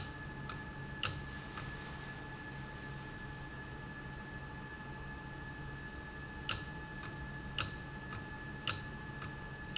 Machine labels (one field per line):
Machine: valve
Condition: abnormal